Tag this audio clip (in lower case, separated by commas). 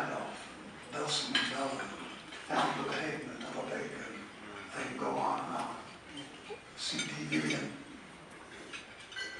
speech, narration, man speaking